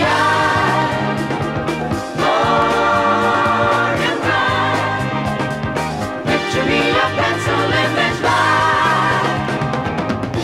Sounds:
Music

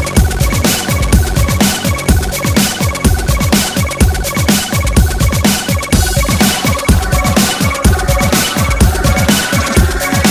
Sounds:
Drum and bass, Music

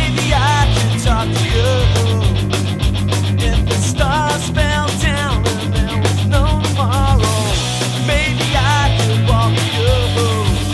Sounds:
Punk rock, Music

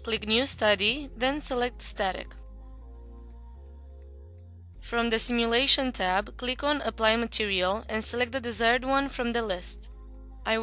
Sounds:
Music, Speech

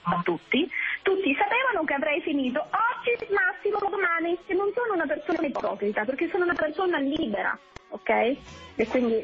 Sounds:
Speech, Radio

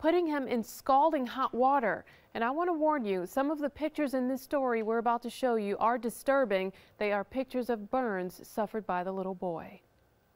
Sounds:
Speech

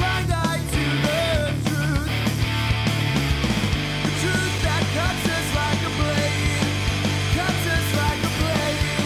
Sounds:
Music

